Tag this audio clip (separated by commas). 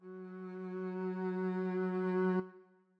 Musical instrument, Bowed string instrument, Music